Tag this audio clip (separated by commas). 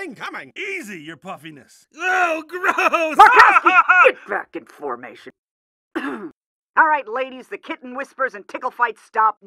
Speech